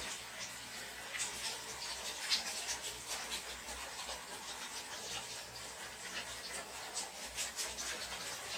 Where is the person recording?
in a restroom